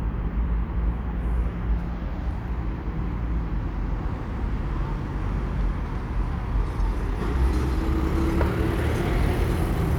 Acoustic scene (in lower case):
residential area